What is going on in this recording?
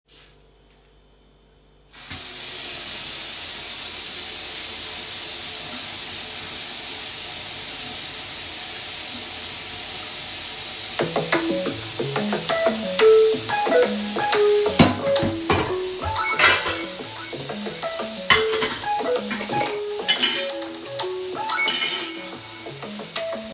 I placed the phone on the kitchen counter and started recording. I turned on the running water. After a few seconds the phone started ringing. While the water and the phone were still active I moved some cutlery in the sink so all sounds overlapped before stopping the recording.